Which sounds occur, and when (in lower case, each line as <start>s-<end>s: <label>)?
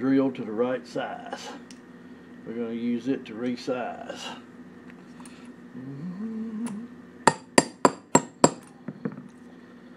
0.0s-1.6s: male speech
0.0s-9.0s: mechanisms
1.3s-1.4s: generic impact sounds
1.7s-1.8s: generic impact sounds
1.9s-2.3s: breathing
2.4s-4.4s: male speech
3.4s-3.5s: generic impact sounds
4.8s-5.0s: generic impact sounds
5.1s-5.3s: generic impact sounds
5.1s-5.5s: surface contact
5.7s-6.9s: humming
6.6s-6.7s: generic impact sounds
7.3s-8.7s: generic impact sounds
8.8s-9.1s: surface contact
8.9s-9.2s: generic impact sounds
9.3s-9.5s: surface contact